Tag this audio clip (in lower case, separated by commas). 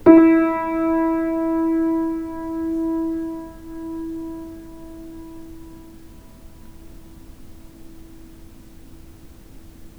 piano, keyboard (musical), musical instrument, music